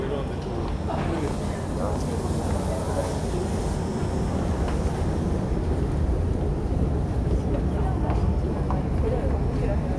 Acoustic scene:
subway station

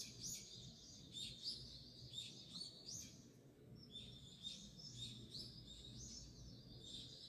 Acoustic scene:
park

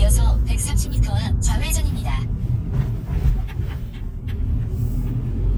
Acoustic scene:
car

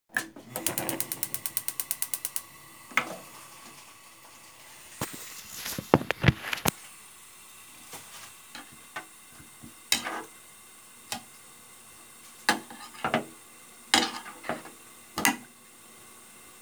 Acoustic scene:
kitchen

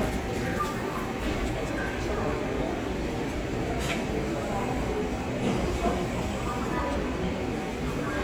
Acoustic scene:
crowded indoor space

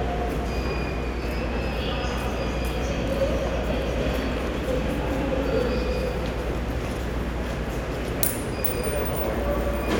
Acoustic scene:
subway station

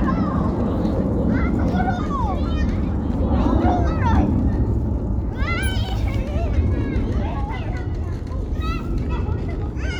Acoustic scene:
residential area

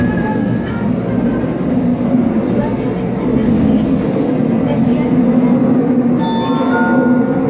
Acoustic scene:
subway train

